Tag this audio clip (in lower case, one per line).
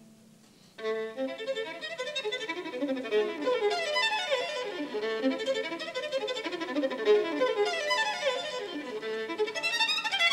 musical instrument
violin
music
bowed string instrument